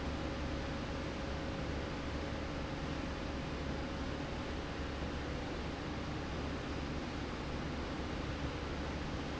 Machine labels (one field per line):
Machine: slide rail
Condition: normal